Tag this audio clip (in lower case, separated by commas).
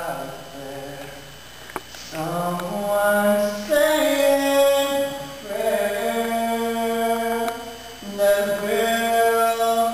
male singing